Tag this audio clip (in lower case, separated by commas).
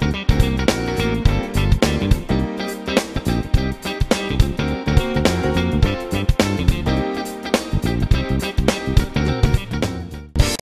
music, strum, guitar, acoustic guitar, plucked string instrument, musical instrument